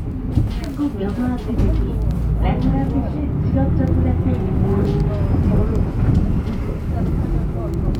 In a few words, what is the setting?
bus